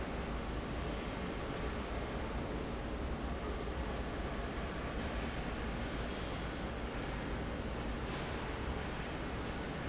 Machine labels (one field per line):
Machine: fan